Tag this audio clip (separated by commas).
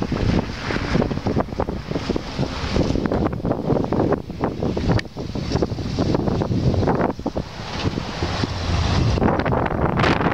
Vehicle, Truck